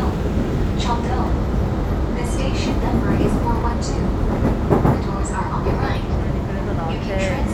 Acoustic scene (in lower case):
subway train